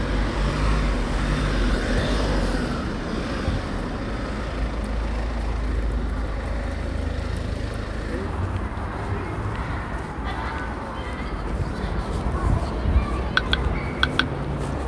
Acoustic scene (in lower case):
residential area